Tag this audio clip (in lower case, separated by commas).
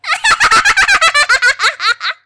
human voice, laughter